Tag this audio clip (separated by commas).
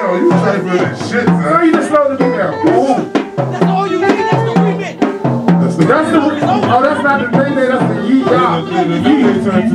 Music, Speech